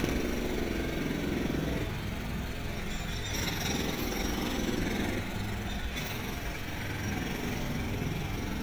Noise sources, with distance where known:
jackhammer, near

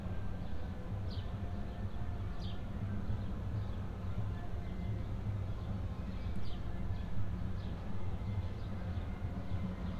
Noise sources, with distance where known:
music from an unclear source, far

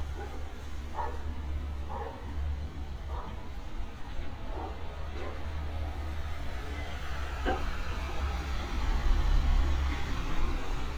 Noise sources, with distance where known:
medium-sounding engine, near
dog barking or whining

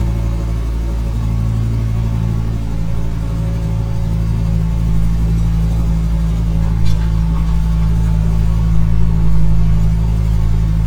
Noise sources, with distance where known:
engine of unclear size, near

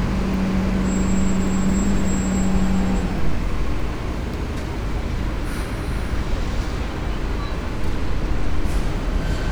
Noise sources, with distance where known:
engine of unclear size, near

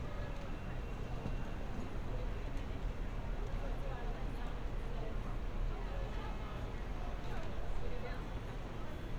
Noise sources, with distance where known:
person or small group talking

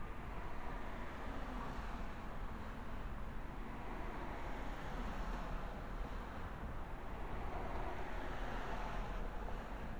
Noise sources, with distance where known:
background noise

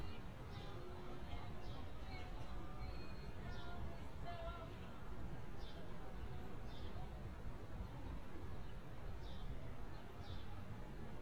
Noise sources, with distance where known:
person or small group talking

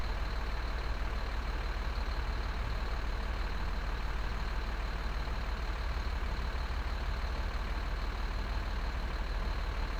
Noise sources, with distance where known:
large-sounding engine

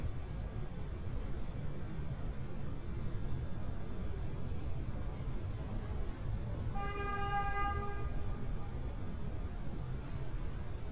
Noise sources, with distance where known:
car horn, far

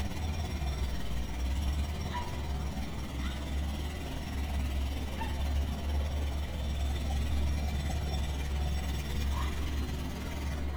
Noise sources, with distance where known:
jackhammer, near
dog barking or whining, near

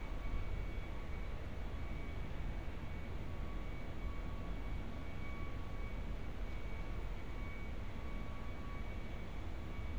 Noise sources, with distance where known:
unidentified alert signal, far

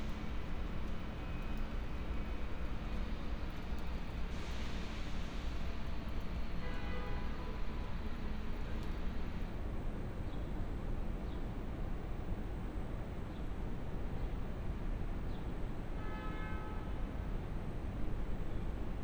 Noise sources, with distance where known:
car horn, far

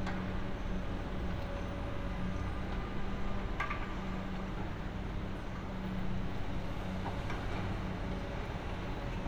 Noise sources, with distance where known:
large-sounding engine

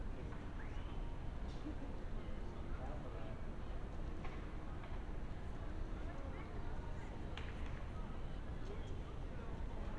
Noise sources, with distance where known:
person or small group talking, far

